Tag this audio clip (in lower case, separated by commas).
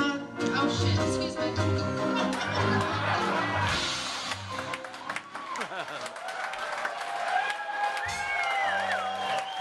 music, speech